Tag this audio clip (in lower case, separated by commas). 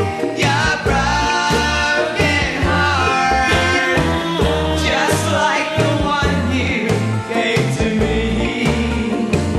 jazz